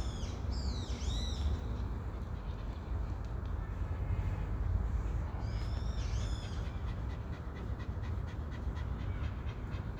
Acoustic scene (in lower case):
park